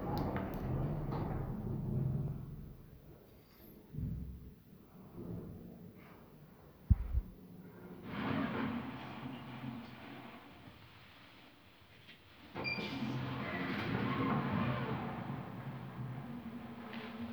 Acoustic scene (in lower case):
elevator